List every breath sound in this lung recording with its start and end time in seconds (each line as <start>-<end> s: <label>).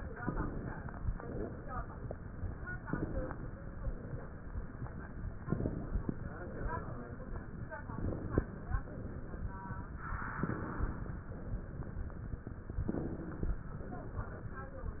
0.19-1.08 s: inhalation
0.21-0.74 s: wheeze
1.10-1.99 s: exhalation
2.85-3.74 s: inhalation
3.00-3.47 s: wheeze
3.78-4.67 s: exhalation
5.46-6.36 s: inhalation
5.52-6.00 s: wheeze
6.41-7.31 s: exhalation
7.89-8.79 s: inhalation
8.06-8.54 s: wheeze
8.86-9.75 s: exhalation
10.46-11.35 s: inhalation
10.53-11.01 s: wheeze
11.33-12.22 s: exhalation
12.88-13.78 s: inhalation
13.02-13.49 s: wheeze
13.81-14.71 s: exhalation